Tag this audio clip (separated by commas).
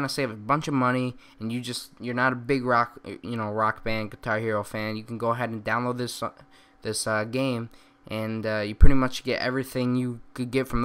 Speech